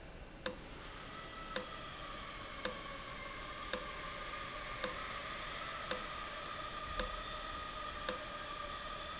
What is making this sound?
valve